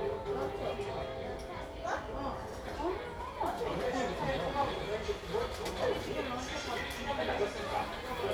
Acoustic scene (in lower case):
crowded indoor space